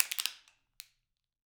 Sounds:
crushing

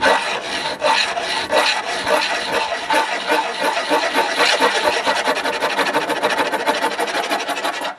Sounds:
tools

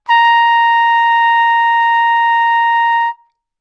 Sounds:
music
trumpet
brass instrument
musical instrument

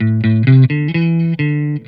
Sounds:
guitar
plucked string instrument
music
electric guitar
musical instrument

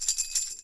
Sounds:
tambourine
musical instrument
percussion
music

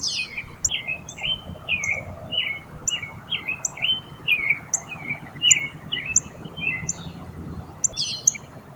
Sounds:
animal
wild animals
bird

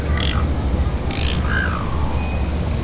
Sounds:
bird
wild animals
animal

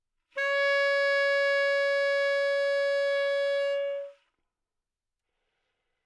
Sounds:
musical instrument
wind instrument
music

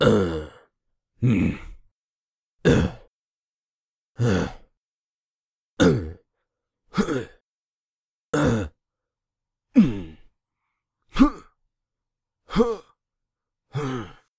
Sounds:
human voice

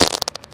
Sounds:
fart

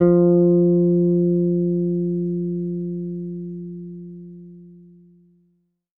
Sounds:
musical instrument
guitar
plucked string instrument
music
bass guitar

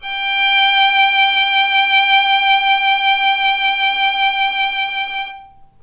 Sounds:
musical instrument
bowed string instrument
music

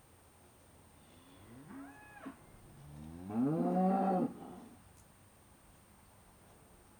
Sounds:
animal
livestock

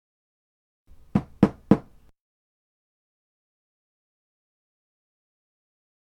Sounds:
door
domestic sounds

